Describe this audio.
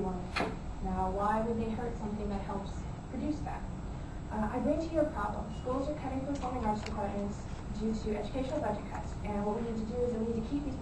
Female speaking with white noise in the background